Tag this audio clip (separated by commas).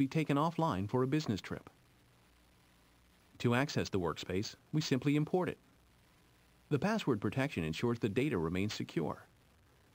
Speech